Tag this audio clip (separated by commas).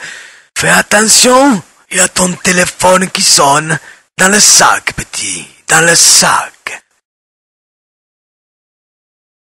Speech